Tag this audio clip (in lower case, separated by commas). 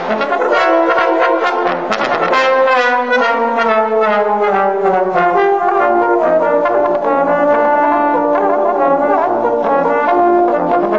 playing trombone